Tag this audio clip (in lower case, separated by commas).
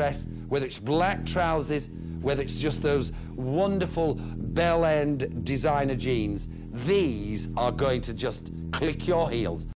speech